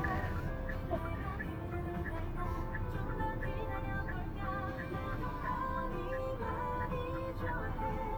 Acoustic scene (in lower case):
car